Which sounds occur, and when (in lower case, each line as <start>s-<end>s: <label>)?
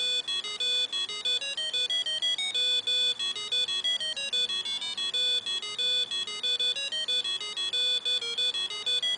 0.0s-9.1s: music